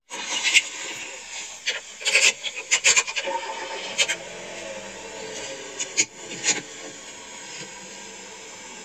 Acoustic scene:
car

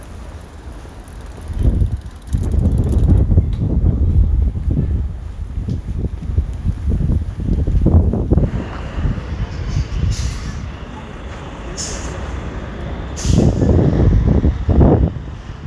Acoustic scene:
residential area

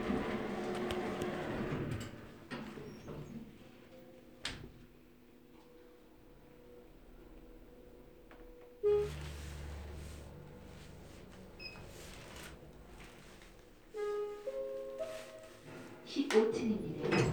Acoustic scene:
elevator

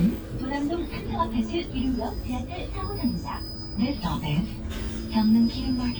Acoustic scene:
bus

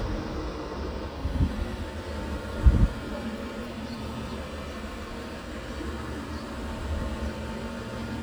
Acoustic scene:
residential area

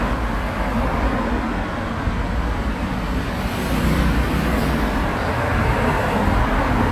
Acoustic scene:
street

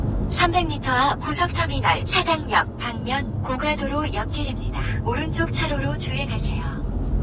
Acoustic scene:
car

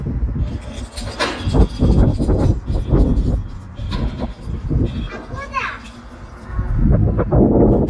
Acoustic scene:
residential area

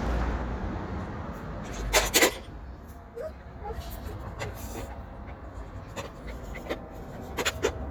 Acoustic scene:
street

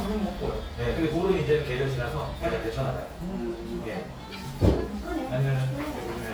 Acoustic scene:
restaurant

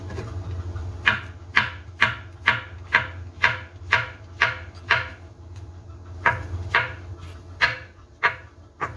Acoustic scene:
kitchen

